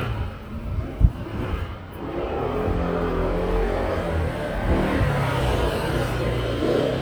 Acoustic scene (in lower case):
residential area